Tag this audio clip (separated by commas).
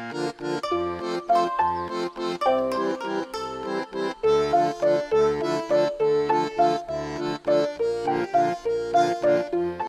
Music